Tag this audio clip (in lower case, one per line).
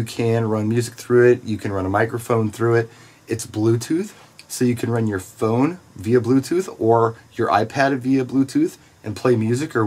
speech